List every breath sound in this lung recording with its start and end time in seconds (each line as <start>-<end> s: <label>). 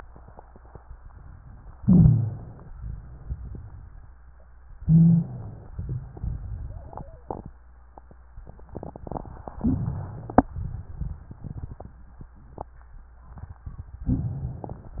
1.80-2.62 s: inhalation
1.80-2.62 s: crackles
2.71-4.06 s: exhalation
2.71-4.06 s: crackles
4.80-5.69 s: inhalation
4.80-5.69 s: crackles
5.75-7.21 s: exhalation
5.75-7.21 s: crackles
9.58-10.47 s: inhalation
9.58-10.47 s: crackles
10.55-12.24 s: exhalation
10.55-12.24 s: crackles
14.10-15.00 s: inhalation
14.10-15.00 s: crackles